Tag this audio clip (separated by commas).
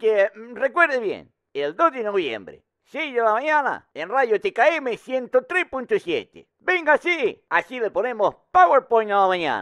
Speech